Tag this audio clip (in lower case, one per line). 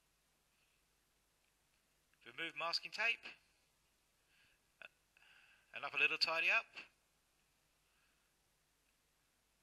speech